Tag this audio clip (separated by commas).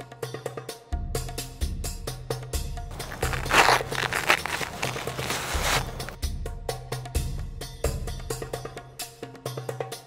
outside, rural or natural, Music